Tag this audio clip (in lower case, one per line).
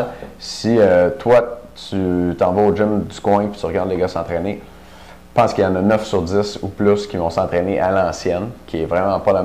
speech